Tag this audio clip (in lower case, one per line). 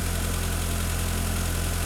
vehicle
car
motor vehicle (road)